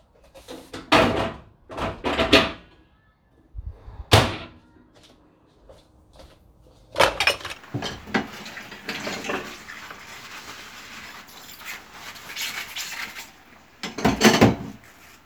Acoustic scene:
kitchen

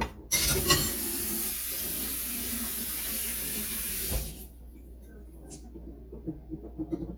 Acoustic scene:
kitchen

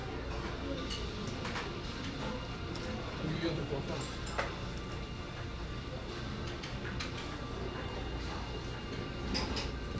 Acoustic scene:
restaurant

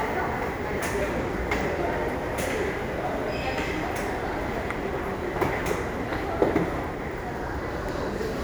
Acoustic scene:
subway station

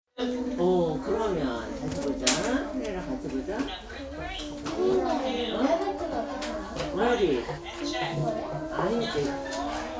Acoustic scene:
crowded indoor space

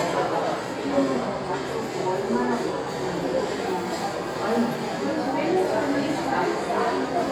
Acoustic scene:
crowded indoor space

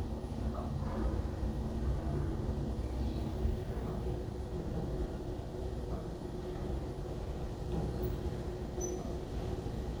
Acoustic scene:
elevator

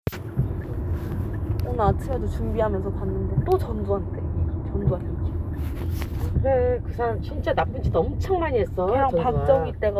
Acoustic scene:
car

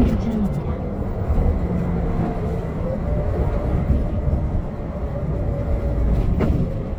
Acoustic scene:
bus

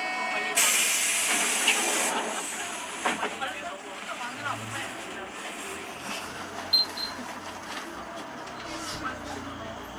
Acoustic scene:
bus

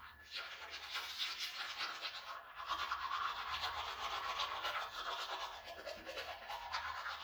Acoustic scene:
restroom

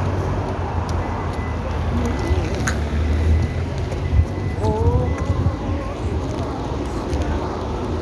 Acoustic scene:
street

